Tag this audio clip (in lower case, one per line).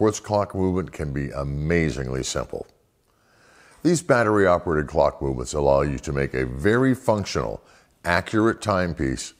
speech